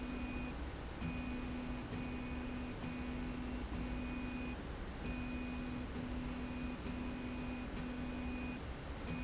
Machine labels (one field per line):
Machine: slide rail